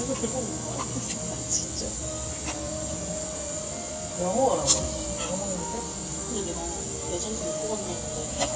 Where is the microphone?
in a cafe